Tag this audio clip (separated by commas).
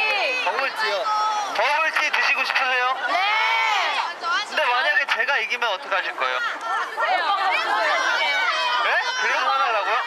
Speech